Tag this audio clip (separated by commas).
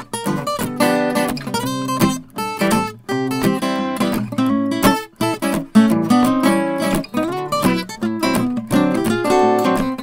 Musical instrument, Music, Acoustic guitar, Strum, Plucked string instrument, Guitar